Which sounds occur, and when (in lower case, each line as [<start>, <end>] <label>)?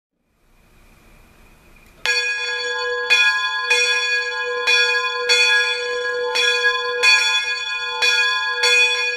[0.11, 9.15] mechanisms
[1.73, 1.86] tick
[1.88, 2.02] human sounds
[2.05, 9.15] bell